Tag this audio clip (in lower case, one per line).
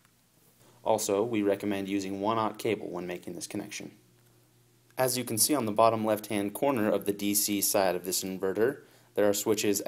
speech